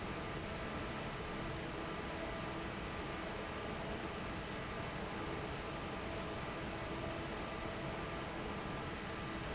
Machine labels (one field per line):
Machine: fan